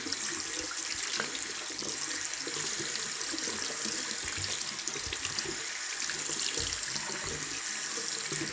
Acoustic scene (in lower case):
restroom